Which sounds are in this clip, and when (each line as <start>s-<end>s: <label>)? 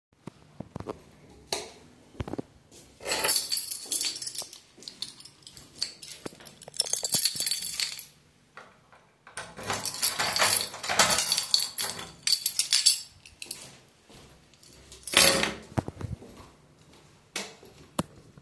1.5s-1.7s: light switch
2.7s-2.9s: footsteps
3.0s-8.2s: keys
3.9s-6.7s: footsteps
9.5s-12.2s: door
9.7s-13.8s: keys
13.4s-15.1s: footsteps
15.0s-16.3s: keys
16.1s-18.4s: footsteps
17.4s-17.6s: light switch